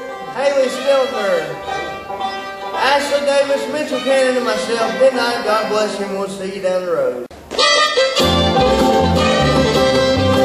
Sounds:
guitar, musical instrument, music, speech, banjo

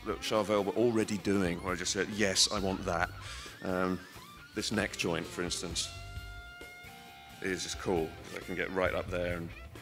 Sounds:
plucked string instrument, guitar, speech, musical instrument, electric guitar, music

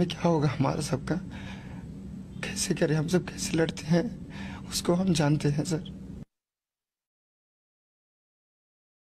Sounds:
speech

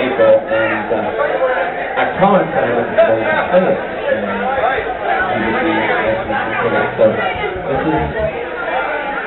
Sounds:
speech

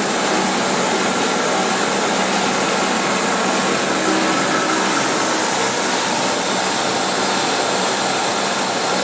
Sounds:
inside a large room or hall

